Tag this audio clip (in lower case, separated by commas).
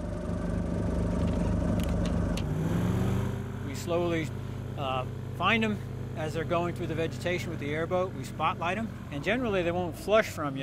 speech